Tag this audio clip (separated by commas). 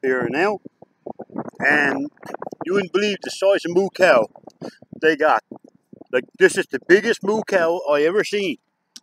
cattle mooing